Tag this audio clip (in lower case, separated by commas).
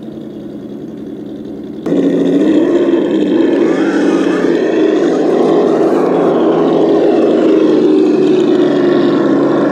outside, rural or natural, truck, vehicle